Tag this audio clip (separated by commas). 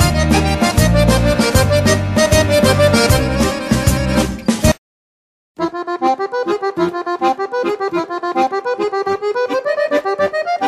playing accordion, Accordion, Music